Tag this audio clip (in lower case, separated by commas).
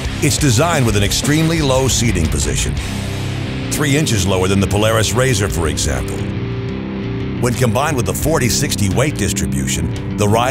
speech, music